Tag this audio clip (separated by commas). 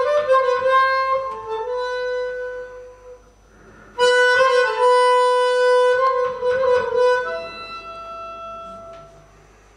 Wind instrument, Harmonica